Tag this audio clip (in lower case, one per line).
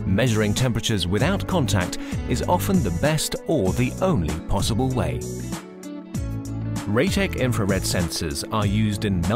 speech
music